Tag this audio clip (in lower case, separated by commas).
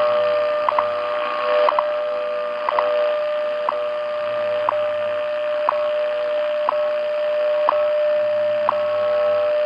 clock